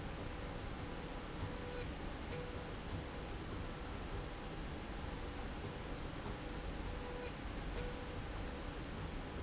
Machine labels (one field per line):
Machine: slide rail